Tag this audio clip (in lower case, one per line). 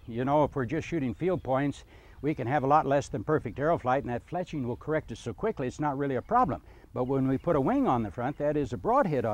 speech